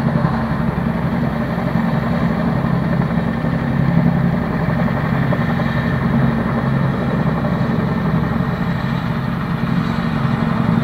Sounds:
Vehicle, Aircraft, Helicopter

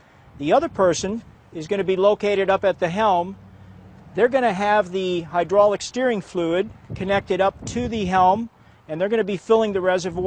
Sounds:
Speech

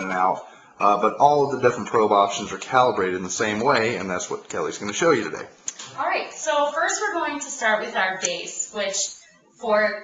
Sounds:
inside a large room or hall, Speech

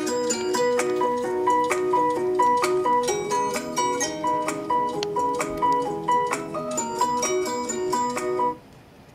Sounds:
Speech, Music

